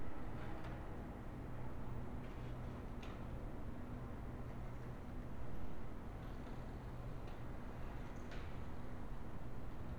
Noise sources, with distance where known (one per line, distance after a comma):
background noise